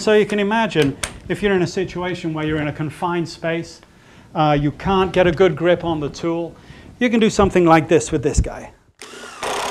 A man giving a speech as he works a drill